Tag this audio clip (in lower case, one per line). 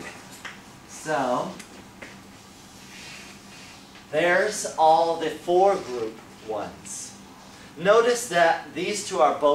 inside a small room
speech